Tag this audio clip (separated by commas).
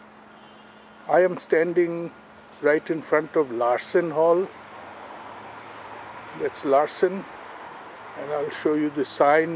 Speech